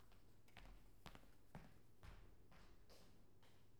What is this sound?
footsteps